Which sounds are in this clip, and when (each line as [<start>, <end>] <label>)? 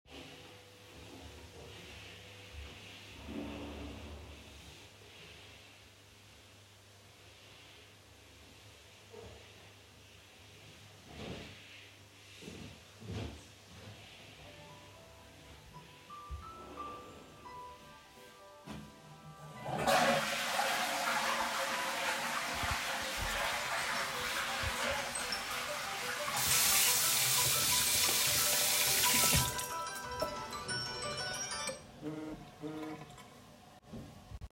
[0.00, 19.92] vacuum cleaner
[14.43, 33.25] phone ringing
[19.65, 27.37] toilet flushing
[26.38, 29.82] running water
[29.84, 34.53] vacuum cleaner